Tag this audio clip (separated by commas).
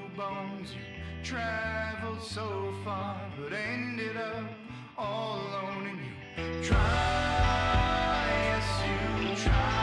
Music